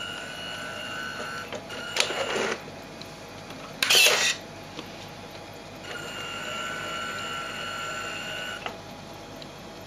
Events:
[0.00, 9.85] mechanisms
[8.60, 8.72] tap
[9.35, 9.43] generic impact sounds

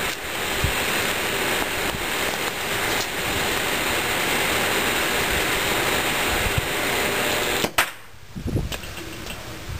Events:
[0.00, 0.11] generic impact sounds
[0.00, 9.75] mechanisms
[0.00, 9.75] wind
[0.48, 0.69] wind noise (microphone)
[1.50, 1.61] generic impact sounds
[1.75, 1.89] generic impact sounds
[2.16, 2.21] generic impact sounds
[2.33, 2.43] generic impact sounds
[2.83, 2.96] generic impact sounds
[7.55, 7.62] generic impact sounds
[7.72, 7.83] generic impact sounds
[8.27, 8.62] wind noise (microphone)
[8.65, 8.93] generic impact sounds
[9.09, 9.28] generic impact sounds

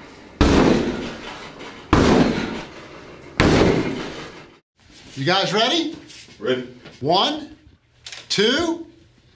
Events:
[0.00, 4.60] background noise
[0.27, 1.27] generic impact sounds
[1.78, 2.64] generic impact sounds
[3.28, 4.32] generic impact sounds
[4.71, 9.35] background noise
[5.07, 6.02] man speaking
[6.36, 6.70] man speaking
[6.95, 7.61] man speaking
[8.05, 8.87] man speaking

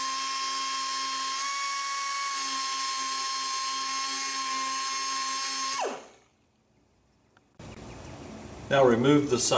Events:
[6.15, 9.55] background noise
[7.32, 7.41] tap
[7.57, 9.55] mechanisms
[8.04, 8.13] tweet
[8.70, 9.55] male speech

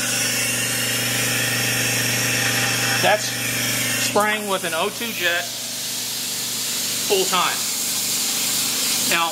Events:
[0.00, 9.31] mechanisms
[0.00, 9.31] pump (liquid)
[9.04, 9.31] male speech

